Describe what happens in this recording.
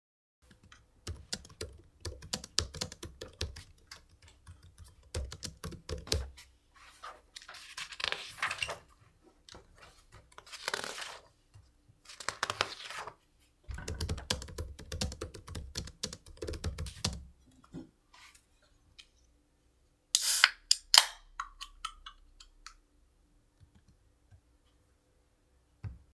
I am working on my laptop then I turn a page in my book, then I open a can of soda